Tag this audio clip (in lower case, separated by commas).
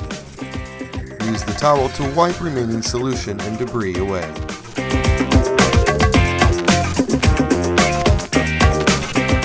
music, speech